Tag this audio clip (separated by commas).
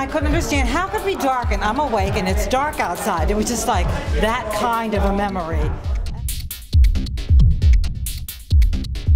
Speech, woman speaking, Music